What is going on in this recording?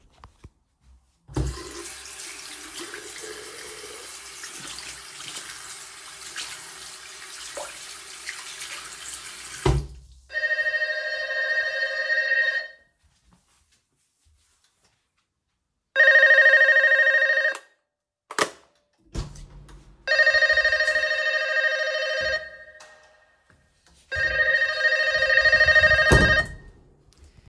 I am washing my hands at the sink while water is running. Then the apartment doorbell rings repeatedly in the hallway. I walk to the door, and open and close it. Slightly overlap